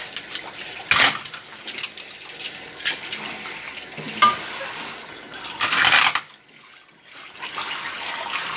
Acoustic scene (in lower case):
kitchen